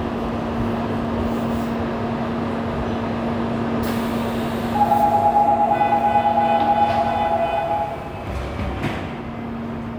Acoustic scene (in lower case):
subway station